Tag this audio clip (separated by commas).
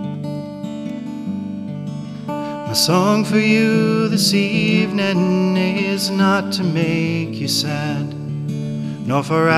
Acoustic guitar, Musical instrument, Guitar, Music, Strum, Plucked string instrument